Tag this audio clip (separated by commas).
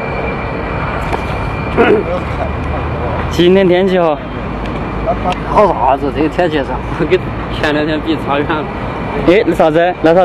Speech, Vehicle